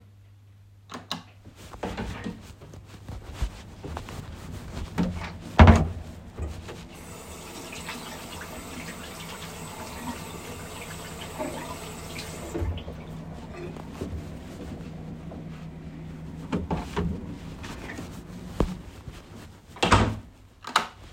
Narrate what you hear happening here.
I turned on the light, opened my bathroom door, got inside and closed it. Then I turned on the sink, washed my hands and turned it off. Finally, I dried my hands into a towel, opened the door, got out of the bathroom, closed it and turned the light off.